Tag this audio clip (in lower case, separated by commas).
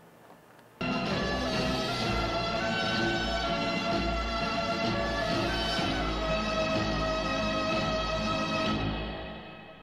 music